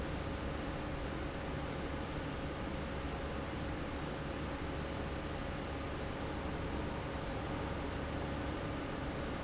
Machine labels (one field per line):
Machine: fan